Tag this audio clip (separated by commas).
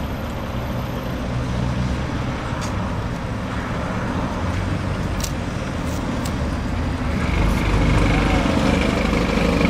Bus, Vehicle